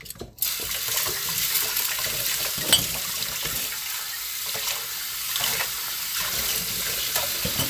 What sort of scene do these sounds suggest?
kitchen